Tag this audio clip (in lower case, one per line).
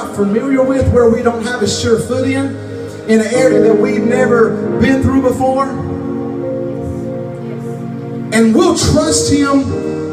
speech
music